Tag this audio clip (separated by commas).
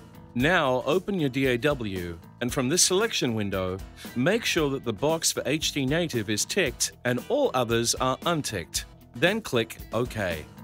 Music, Speech